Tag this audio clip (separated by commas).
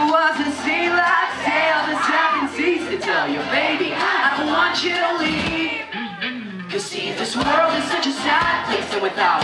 Music